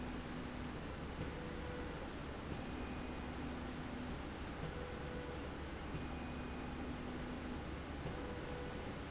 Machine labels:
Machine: slide rail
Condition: normal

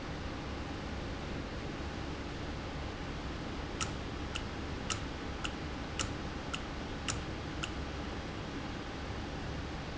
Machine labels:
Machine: valve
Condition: normal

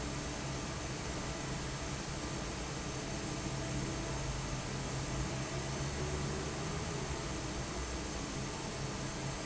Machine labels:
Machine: fan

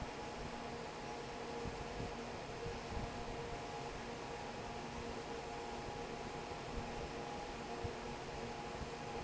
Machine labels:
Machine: fan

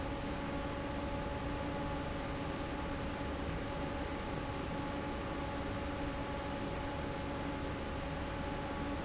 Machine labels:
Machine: fan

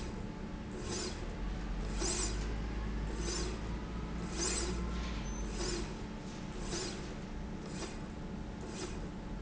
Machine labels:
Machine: slide rail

